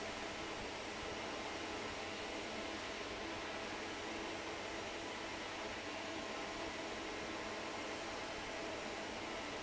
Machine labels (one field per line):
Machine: fan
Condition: normal